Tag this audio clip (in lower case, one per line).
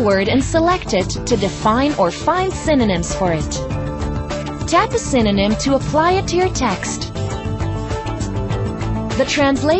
speech
music